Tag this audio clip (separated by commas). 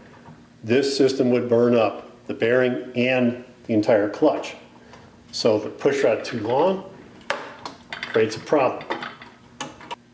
Speech, inside a small room